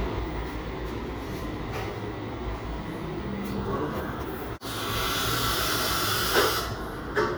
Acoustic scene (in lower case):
cafe